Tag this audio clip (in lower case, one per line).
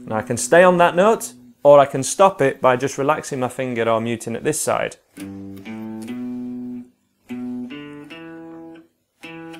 inside a small room
speech
music
guitar
plucked string instrument
musical instrument